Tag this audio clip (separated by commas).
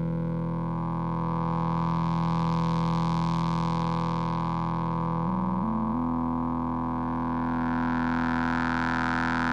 Sampler